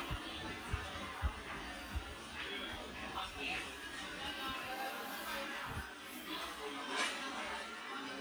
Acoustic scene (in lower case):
restaurant